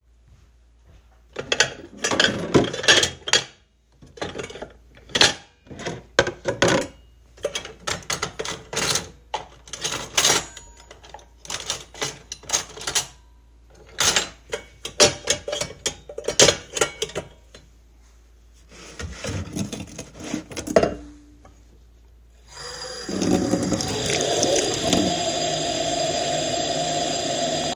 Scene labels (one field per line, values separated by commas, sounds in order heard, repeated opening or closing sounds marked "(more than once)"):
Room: kitchen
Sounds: cutlery and dishes, running water